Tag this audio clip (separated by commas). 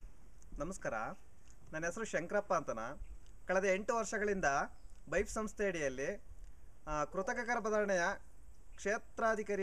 Speech